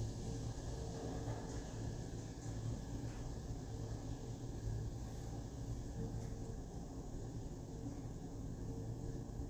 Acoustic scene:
elevator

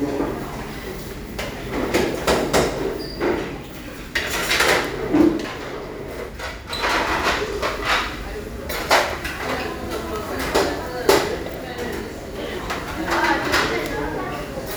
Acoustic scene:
restaurant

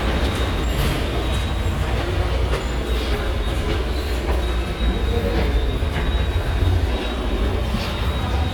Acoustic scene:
subway station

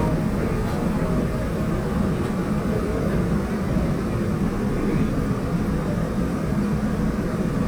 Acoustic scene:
subway train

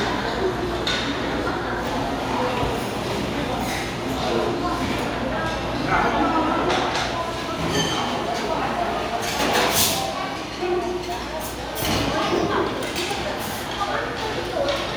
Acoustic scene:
restaurant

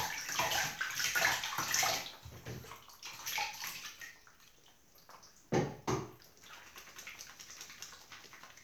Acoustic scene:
restroom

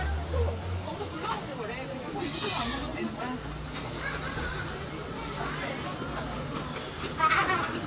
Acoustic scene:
residential area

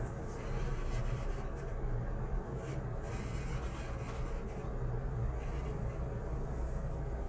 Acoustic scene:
elevator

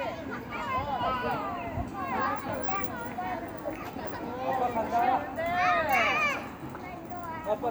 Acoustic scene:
residential area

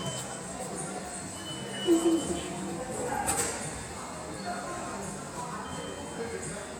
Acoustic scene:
subway station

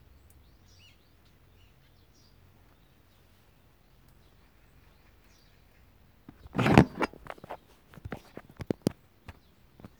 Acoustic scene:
park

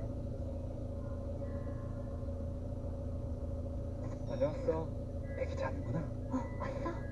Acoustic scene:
car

